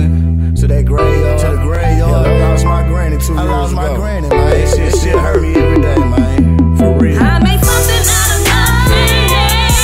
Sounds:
music

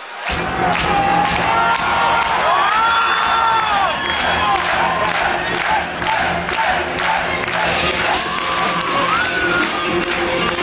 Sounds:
music

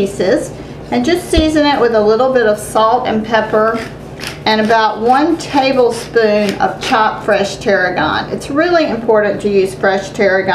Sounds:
speech

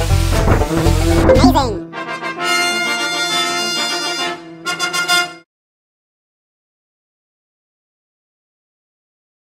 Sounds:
speech, music

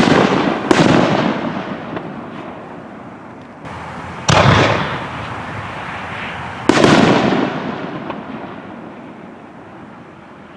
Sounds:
fireworks, fireworks banging, artillery fire

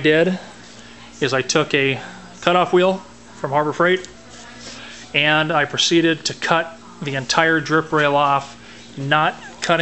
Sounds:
speech

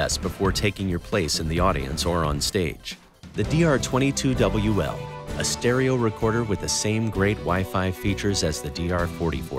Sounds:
music, guitar, musical instrument

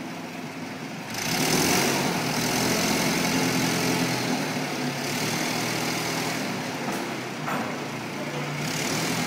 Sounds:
vehicle, speedboat

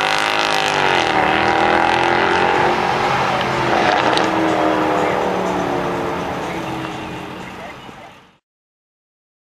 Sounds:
vehicle, revving

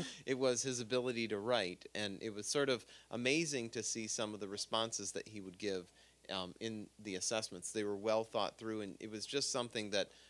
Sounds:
speech

